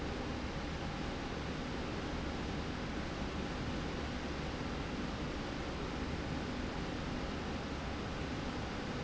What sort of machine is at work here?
slide rail